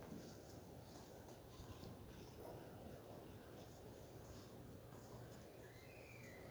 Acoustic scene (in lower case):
residential area